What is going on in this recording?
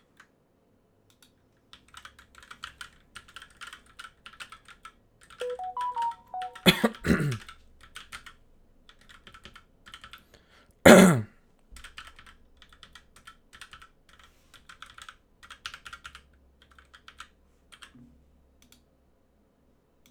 I used my compuer for typing the keyboard, coughed, I also used the mouse to navigate